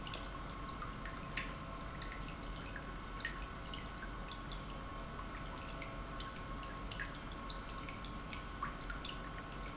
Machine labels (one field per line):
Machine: pump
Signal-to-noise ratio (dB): 6 dB